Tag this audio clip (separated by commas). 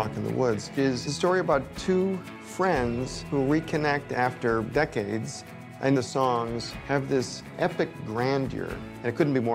Speech, Music